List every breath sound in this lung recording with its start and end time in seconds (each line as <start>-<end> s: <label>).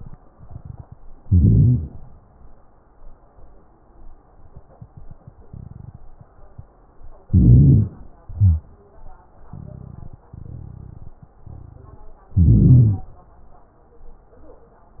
1.24-2.03 s: inhalation
1.24-2.03 s: crackles
7.26-8.05 s: inhalation
7.26-8.05 s: crackles
8.19-8.72 s: exhalation
8.19-8.72 s: crackles
12.36-13.10 s: inhalation
12.36-13.10 s: crackles